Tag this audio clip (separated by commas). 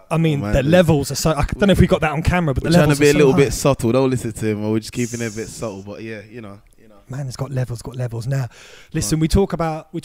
Speech